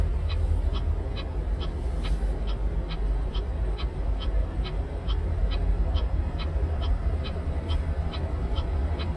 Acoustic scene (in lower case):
car